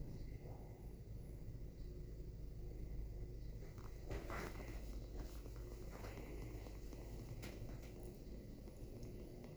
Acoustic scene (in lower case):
elevator